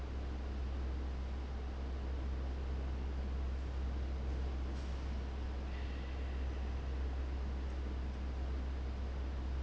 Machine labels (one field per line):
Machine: fan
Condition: abnormal